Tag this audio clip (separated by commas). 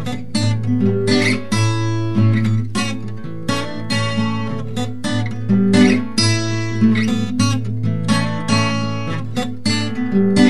Plucked string instrument, Music, Musical instrument, Acoustic guitar, Guitar, Strum